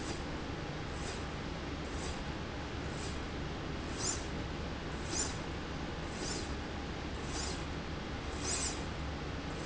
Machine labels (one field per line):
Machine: slide rail